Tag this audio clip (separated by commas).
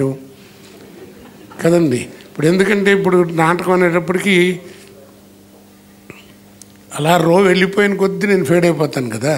Laughter, Speech